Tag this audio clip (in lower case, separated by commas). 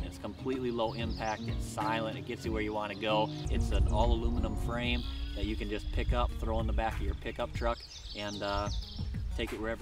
speech, animal, bird, music